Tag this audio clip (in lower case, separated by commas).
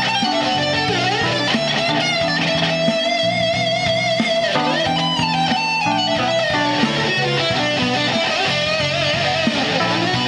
blues, music